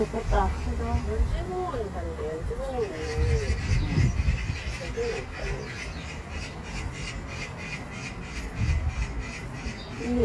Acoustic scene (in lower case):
park